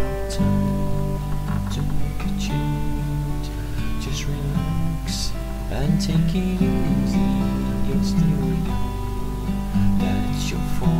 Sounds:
Music

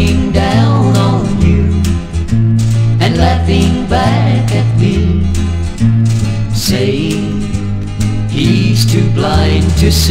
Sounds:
Blues, Music, Country, Choir, Male singing

